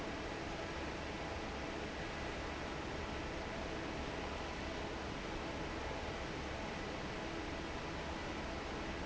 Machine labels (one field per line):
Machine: fan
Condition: normal